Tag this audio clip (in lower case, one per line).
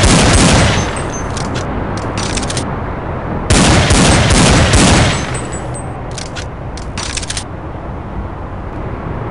outside, urban or man-made